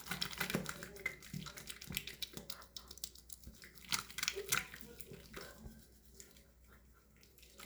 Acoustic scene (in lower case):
restroom